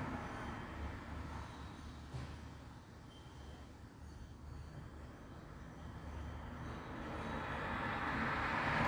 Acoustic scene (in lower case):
street